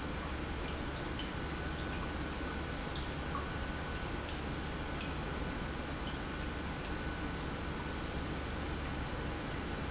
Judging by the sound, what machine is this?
pump